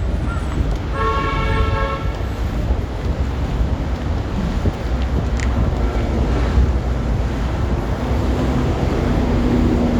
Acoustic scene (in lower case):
street